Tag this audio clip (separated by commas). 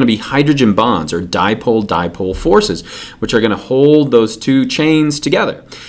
Speech